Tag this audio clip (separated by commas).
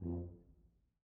Brass instrument, Musical instrument, Music